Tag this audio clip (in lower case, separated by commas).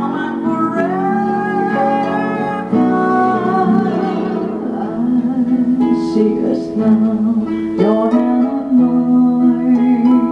playing harp, musical instrument, guitar, singing, plucked string instrument, music, harp